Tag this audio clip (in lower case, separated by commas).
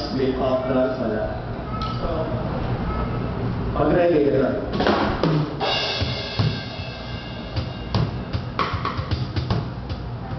new-age music, music, drum, drum kit, speech, bass drum, musical instrument